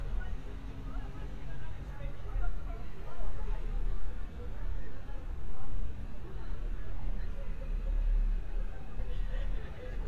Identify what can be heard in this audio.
person or small group talking